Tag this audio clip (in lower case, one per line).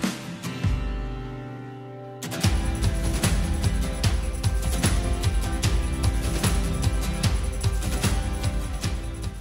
music